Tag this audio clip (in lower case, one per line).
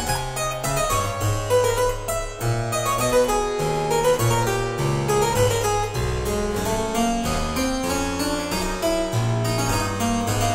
harpsichord
music